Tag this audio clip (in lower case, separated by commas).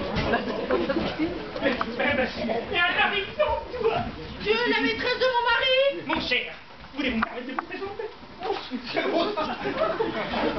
speech